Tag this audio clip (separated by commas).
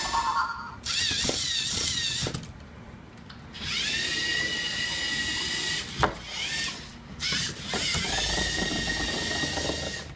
inside a small room